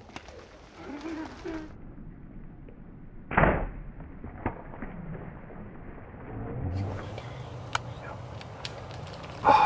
A gun shoots, followed by animals moving away